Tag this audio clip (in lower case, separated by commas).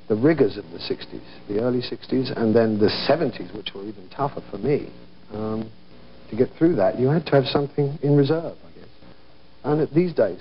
speech